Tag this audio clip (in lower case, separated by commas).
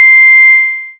music, musical instrument, keyboard (musical), piano